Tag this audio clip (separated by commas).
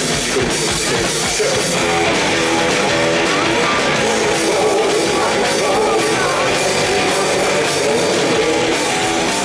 Music, Rock and roll